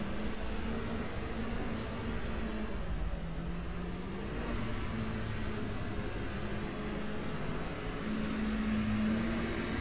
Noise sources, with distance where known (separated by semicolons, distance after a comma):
engine of unclear size